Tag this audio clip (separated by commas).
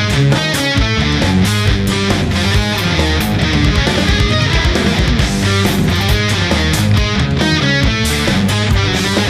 Music